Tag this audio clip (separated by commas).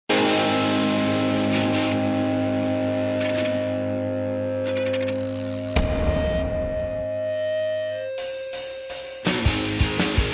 Electric guitar